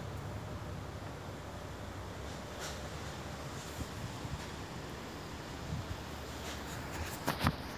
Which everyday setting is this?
residential area